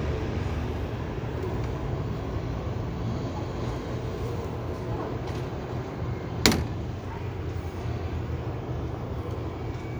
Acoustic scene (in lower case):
street